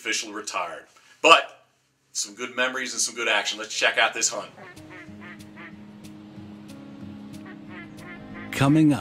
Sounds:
Animal, Quack, Speech, Music

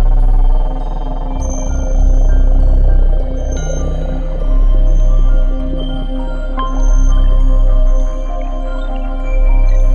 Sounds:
Music, Tender music

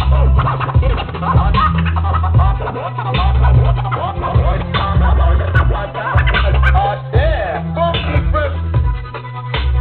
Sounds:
Music, Scratching (performance technique)

